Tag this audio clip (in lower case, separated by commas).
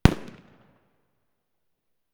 explosion, fireworks